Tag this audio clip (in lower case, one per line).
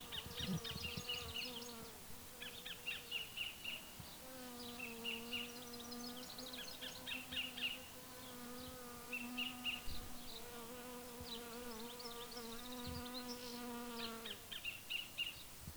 animal
insect
wild animals